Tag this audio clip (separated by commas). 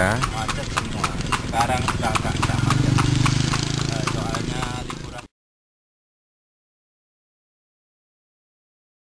Animal, Speech, Horse, Clip-clop, horse clip-clop